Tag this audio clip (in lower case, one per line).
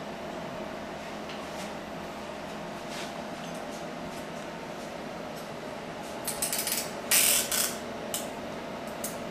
engine